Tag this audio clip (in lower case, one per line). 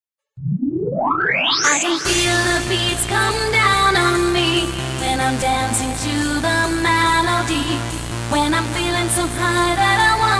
electronic music
techno
music